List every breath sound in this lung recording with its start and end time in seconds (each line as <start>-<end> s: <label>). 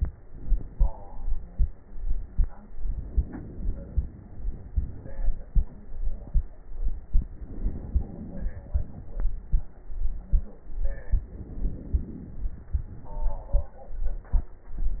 2.73-4.68 s: inhalation
4.70-5.53 s: exhalation
7.11-8.54 s: inhalation
8.55-9.27 s: exhalation
11.18-12.42 s: inhalation
12.41-13.59 s: exhalation